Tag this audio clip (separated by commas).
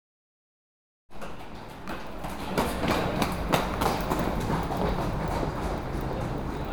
Run